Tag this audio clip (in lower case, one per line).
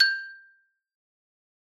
music
percussion
marimba
mallet percussion
musical instrument